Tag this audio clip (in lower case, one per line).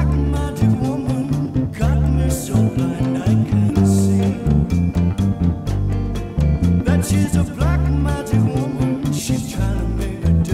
playing bass guitar